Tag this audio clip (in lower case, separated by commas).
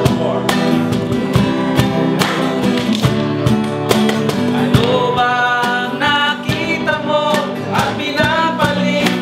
music, singing